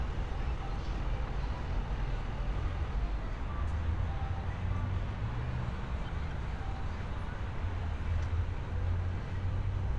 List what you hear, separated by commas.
medium-sounding engine, music from an unclear source